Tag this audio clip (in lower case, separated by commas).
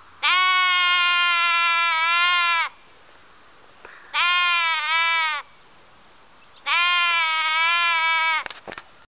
bleat, sheep